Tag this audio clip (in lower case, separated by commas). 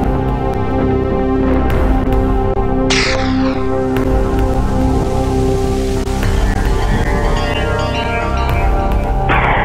music